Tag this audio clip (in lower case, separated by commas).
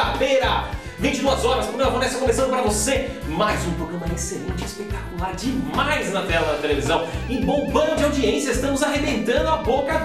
music, speech